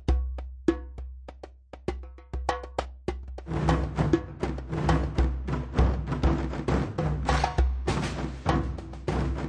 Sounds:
Music

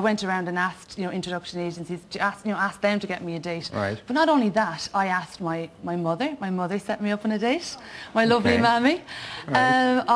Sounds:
Female speech

